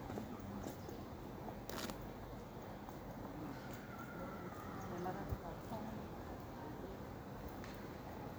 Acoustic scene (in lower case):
park